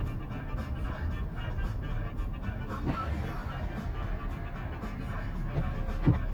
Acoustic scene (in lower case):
car